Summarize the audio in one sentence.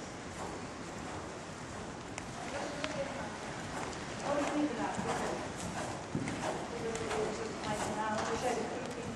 Horse is running, speech in background